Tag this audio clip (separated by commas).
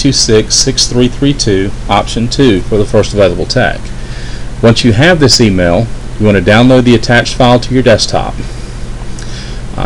Speech